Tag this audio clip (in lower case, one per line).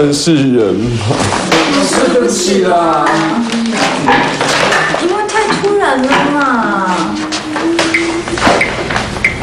inside a large room or hall
speech